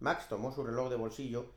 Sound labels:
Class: speech